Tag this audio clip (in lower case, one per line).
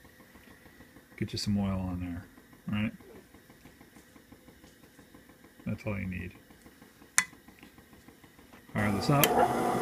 speech